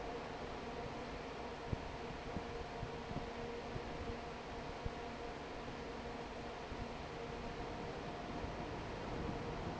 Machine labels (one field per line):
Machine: fan